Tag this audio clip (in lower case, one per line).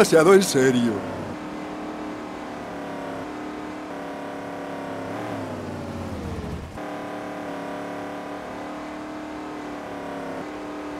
truck
vehicle
speech